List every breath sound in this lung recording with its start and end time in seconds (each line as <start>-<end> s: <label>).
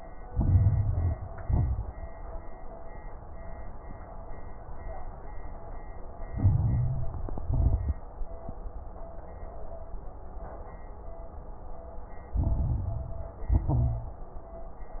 0.28-1.19 s: inhalation
0.28-1.19 s: crackles
1.39-2.30 s: exhalation
1.39-2.30 s: crackles
6.33-7.41 s: inhalation
6.33-7.41 s: crackles
7.47-8.04 s: exhalation
7.47-8.04 s: crackles
12.33-13.43 s: crackles
12.37-13.47 s: inhalation
13.45-14.27 s: exhalation
13.45-14.27 s: crackles